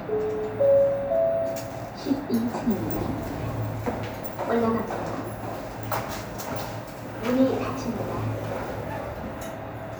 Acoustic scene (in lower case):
elevator